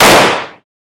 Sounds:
Explosion, gunfire

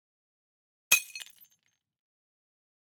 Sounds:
Shatter, Glass

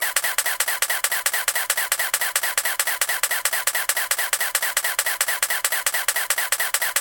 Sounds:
Mechanisms, Camera

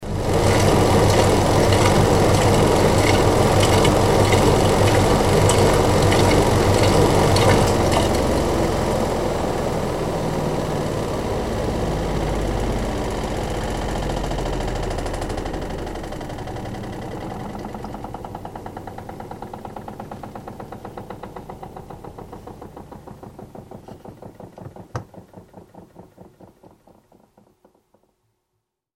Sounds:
Engine

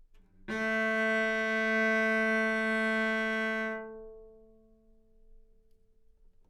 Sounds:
Music, Bowed string instrument, Musical instrument

